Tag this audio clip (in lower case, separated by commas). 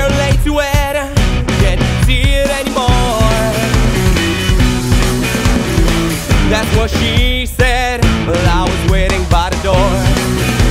music